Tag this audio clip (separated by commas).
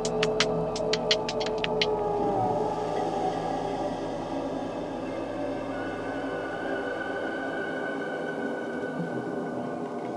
Electronic music, Music